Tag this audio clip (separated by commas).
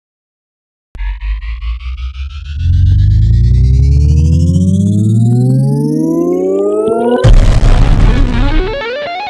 Electric guitar, Plucked string instrument, Guitar, Music, Musical instrument